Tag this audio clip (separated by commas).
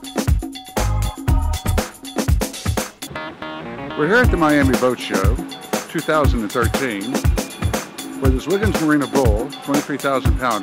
Music, Speech